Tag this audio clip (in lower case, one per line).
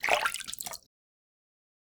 splatter
liquid